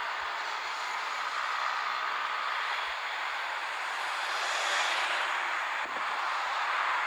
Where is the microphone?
on a street